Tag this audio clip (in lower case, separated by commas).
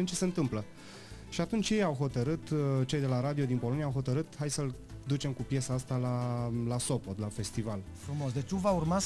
music, speech